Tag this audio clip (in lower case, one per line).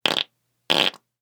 fart